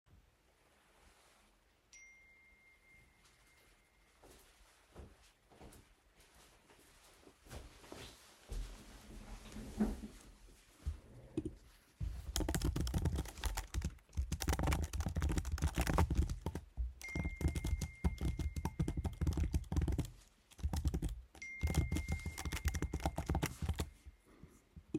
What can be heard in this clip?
phone ringing, footsteps, keyboard typing